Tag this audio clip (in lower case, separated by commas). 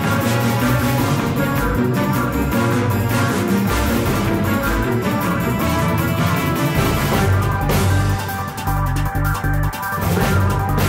music